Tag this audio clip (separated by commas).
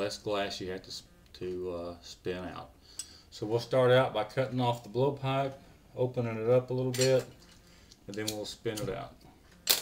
inside a small room, Glass, Speech